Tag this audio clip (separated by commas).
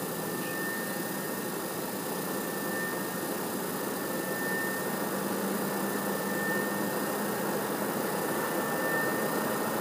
White noise